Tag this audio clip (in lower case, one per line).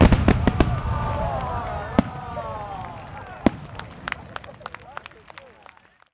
crowd
explosion
fireworks
human group actions